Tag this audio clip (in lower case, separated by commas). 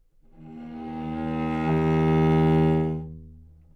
musical instrument, bowed string instrument, music